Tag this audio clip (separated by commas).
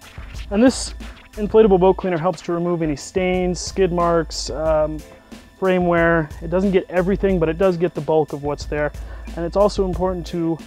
Speech, Music